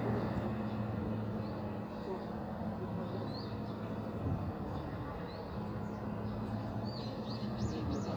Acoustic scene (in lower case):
street